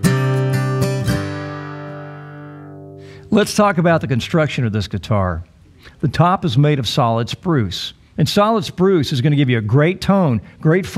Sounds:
Music, Speech

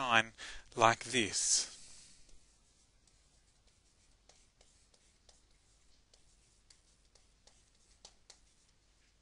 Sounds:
Speech

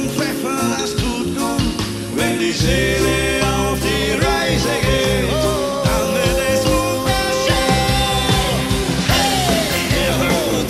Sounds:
Music, Rock music, Ska, Progressive rock

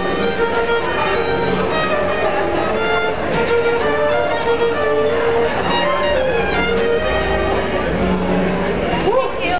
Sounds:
Speech, Music, Musical instrument, Violin

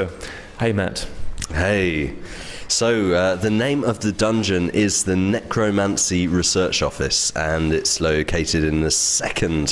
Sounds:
Speech

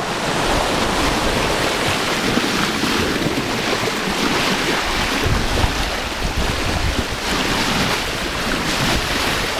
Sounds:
Wind, Water vehicle, ocean burbling, Ocean, Ship, Wind noise (microphone), surf

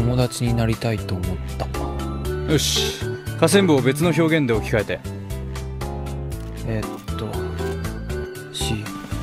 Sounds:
Speech, Music

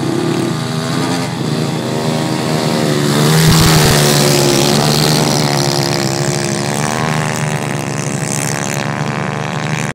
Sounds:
vroom, revving, Vehicle, Medium engine (mid frequency), Engine

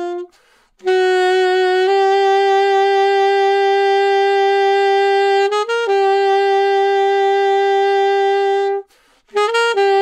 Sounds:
playing saxophone

